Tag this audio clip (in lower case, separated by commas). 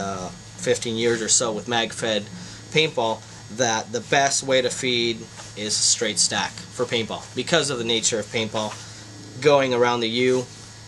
hum